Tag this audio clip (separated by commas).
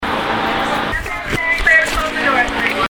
Vehicle, underground, Rail transport